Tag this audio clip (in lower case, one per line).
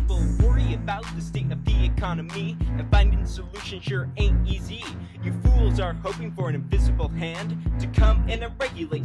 music